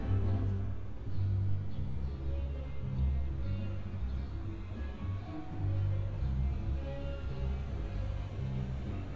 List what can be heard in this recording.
music from an unclear source